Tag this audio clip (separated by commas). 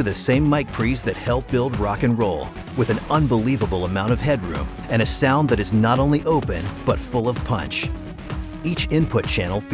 Speech, Music